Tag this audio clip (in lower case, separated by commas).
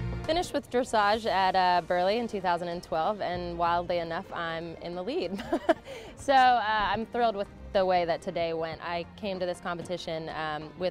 music, speech